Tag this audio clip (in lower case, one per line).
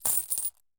home sounds
coin (dropping)